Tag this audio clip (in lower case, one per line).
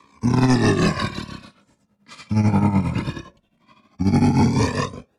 animal